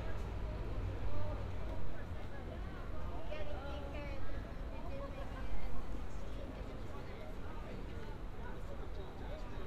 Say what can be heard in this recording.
person or small group talking